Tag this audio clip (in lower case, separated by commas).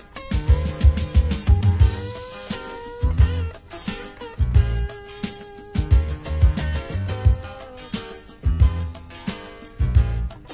music, soul music